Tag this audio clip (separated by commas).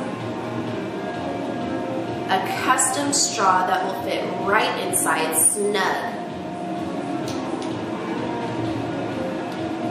Speech, Music